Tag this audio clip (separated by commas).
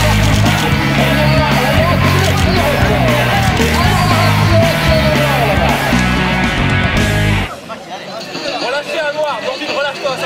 man speaking, outside, urban or man-made, Speech, Music